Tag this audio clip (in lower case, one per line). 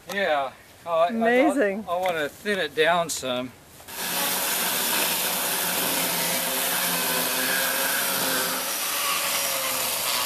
speech
chainsaw